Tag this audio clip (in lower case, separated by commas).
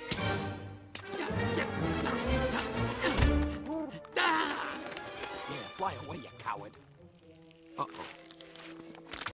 speech, music